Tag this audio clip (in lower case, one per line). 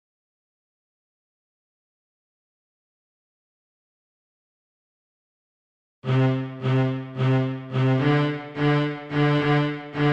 playing cello